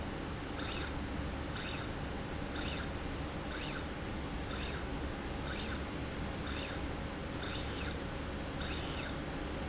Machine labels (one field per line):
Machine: slide rail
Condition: normal